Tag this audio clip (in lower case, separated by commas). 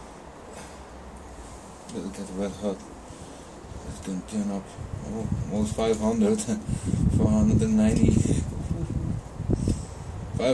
speech